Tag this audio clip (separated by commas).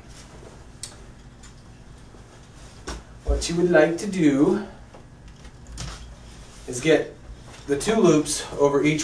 Speech